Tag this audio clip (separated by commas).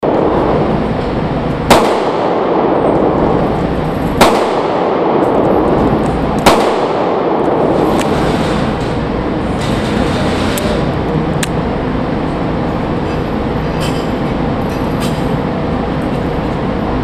Explosion, gunfire